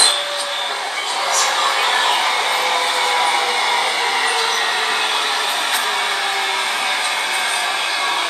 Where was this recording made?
on a subway train